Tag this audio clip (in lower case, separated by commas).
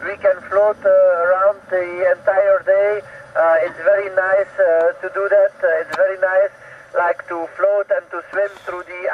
speech, radio